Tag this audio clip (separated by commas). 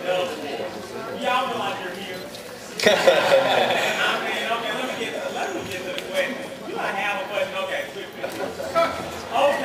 Speech